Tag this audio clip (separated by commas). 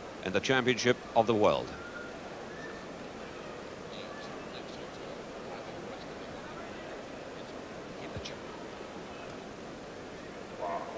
outside, urban or man-made, Speech